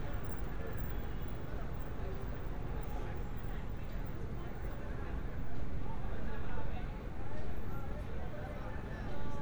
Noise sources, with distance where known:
person or small group talking, far

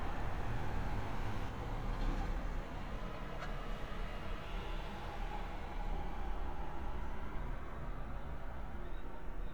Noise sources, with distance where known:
medium-sounding engine, near

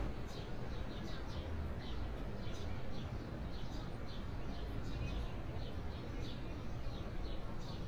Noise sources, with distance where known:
person or small group talking, far

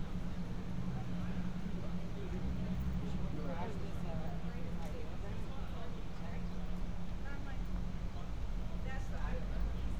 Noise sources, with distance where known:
medium-sounding engine, far
person or small group talking, near

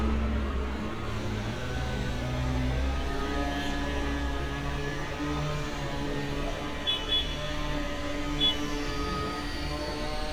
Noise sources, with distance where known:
unidentified powered saw, near
car horn, near

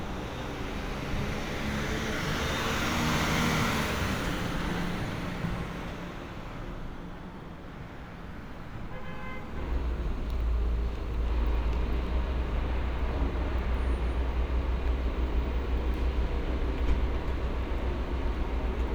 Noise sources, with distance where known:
small-sounding engine

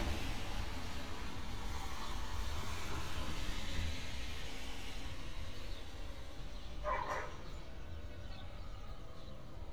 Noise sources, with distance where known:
dog barking or whining

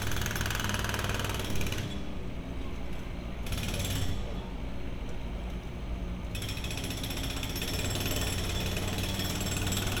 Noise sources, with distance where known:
jackhammer, near

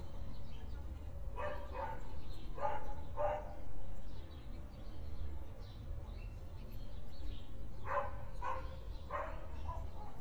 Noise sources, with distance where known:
dog barking or whining

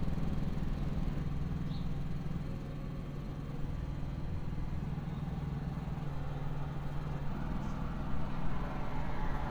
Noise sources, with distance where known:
medium-sounding engine, near
unidentified impact machinery

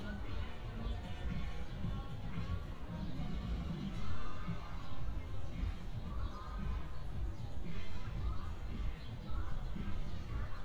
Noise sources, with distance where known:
background noise

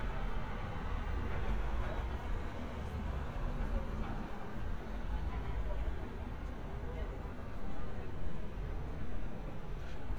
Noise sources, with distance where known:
engine of unclear size
person or small group talking, far

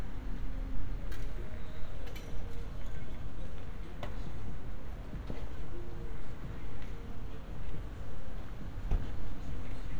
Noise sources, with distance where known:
background noise

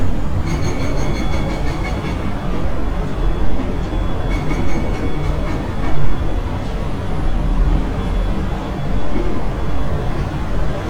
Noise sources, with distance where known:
unidentified impact machinery

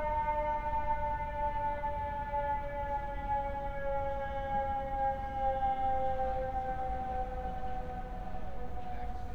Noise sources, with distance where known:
siren

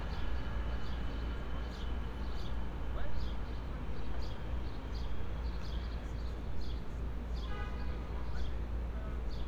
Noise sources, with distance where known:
car horn, far
person or small group talking, far

